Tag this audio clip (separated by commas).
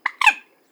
Wild animals, Bird, Animal